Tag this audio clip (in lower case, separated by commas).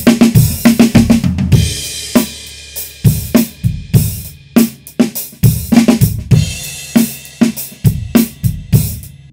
hi-hat, playing cymbal, cymbal